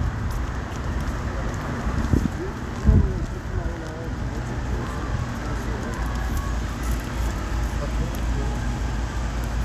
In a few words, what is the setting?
street